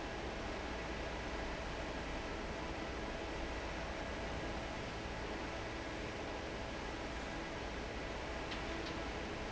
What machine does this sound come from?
fan